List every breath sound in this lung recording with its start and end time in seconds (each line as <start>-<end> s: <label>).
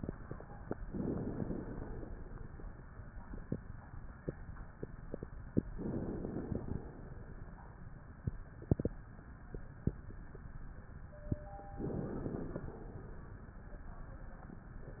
0.80-2.37 s: inhalation
5.72-6.67 s: inhalation
6.72-7.58 s: exhalation
11.79-12.66 s: inhalation
12.66-13.60 s: exhalation